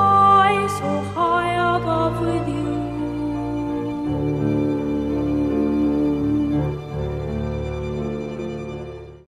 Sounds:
Music

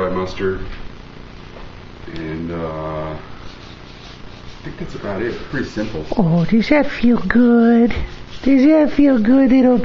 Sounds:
Speech

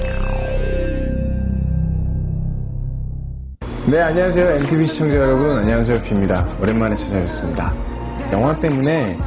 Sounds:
Music, Speech

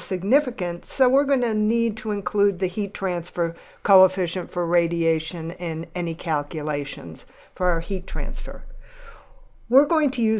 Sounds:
Speech

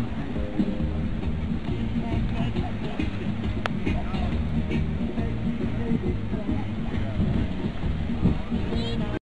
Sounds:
Music, Speech

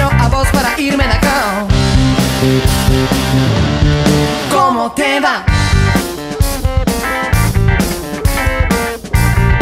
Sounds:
Music, Electronic music

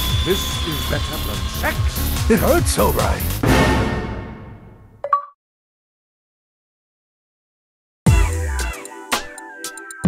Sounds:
Speech, Music

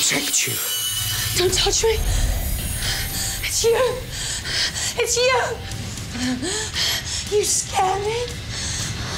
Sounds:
Speech, Music

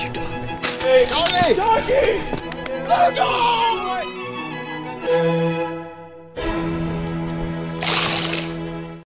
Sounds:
Music, Speech

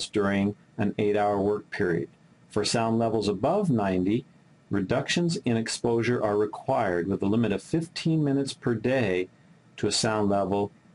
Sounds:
Speech

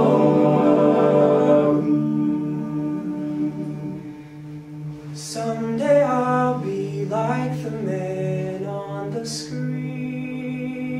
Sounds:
Music

